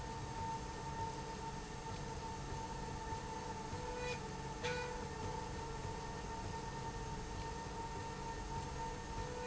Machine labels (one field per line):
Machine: slide rail